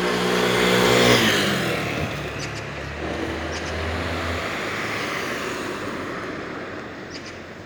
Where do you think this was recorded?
in a residential area